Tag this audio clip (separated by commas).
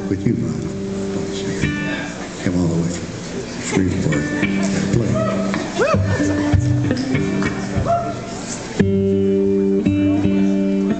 Speech, Music